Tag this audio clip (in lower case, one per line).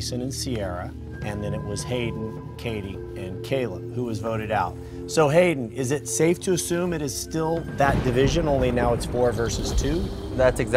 speech
music